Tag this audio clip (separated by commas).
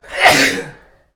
Respiratory sounds, Sneeze